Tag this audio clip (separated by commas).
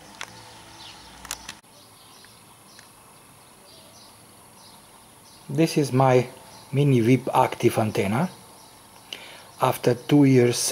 Speech